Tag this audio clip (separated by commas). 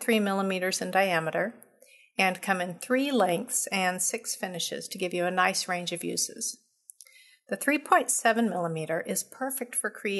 Speech